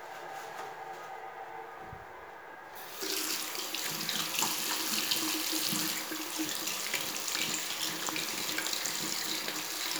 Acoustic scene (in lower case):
restroom